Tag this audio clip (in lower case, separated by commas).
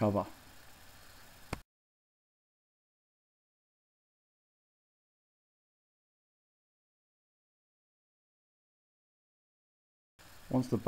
speech